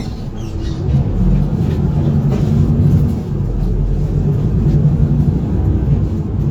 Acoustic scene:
bus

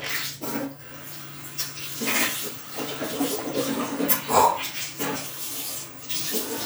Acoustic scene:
restroom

